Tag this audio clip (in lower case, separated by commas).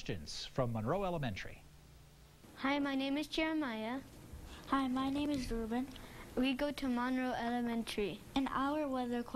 speech